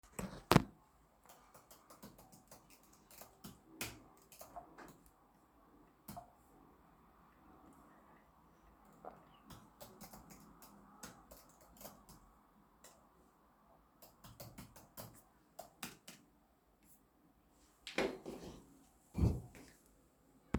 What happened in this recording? I was working on my computer. Then i moved my chair.